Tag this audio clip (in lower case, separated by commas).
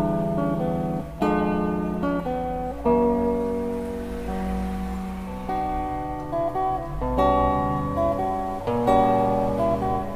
plucked string instrument, musical instrument, guitar, music